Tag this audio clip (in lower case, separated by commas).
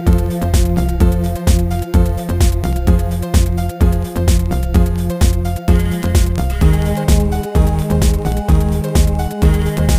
rhythm and blues, music, blues